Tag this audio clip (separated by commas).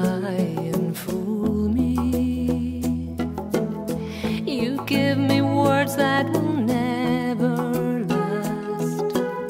Music